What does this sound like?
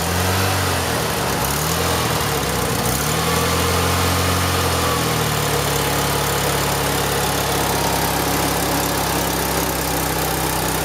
A vehicle engine runs